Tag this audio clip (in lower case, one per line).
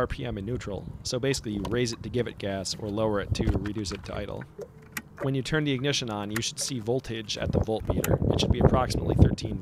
speech